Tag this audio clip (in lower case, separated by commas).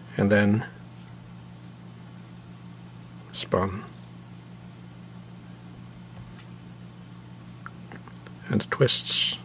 speech